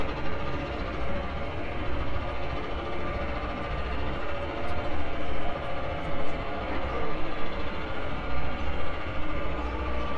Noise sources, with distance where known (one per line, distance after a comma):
jackhammer